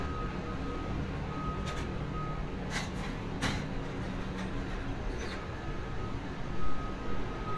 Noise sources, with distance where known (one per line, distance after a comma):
reverse beeper